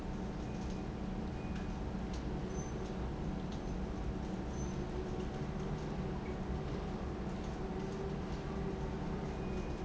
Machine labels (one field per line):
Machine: pump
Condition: normal